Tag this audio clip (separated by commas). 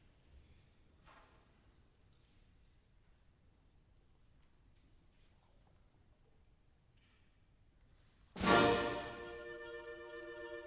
Music